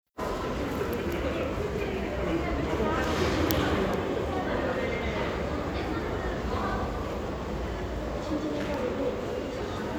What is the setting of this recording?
crowded indoor space